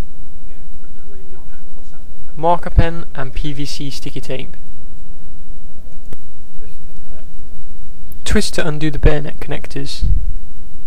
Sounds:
speech

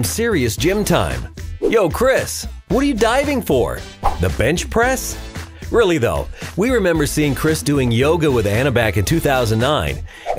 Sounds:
speech, music

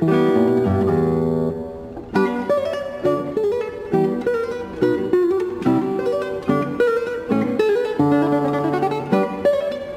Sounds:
music, guitar

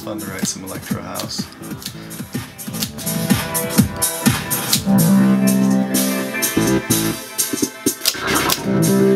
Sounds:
drum machine

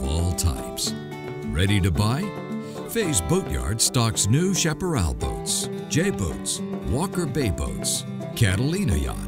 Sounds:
music, speech

